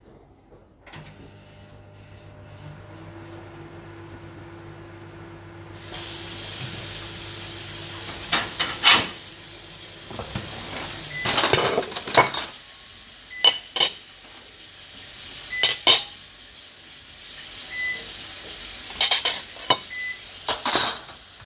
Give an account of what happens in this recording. I turned on my microwave, then promptly turned on the sink. I then quickly grabbed a plate, where the microwave finished its countdown, and began grabbing cutlery and placed it onto the plate.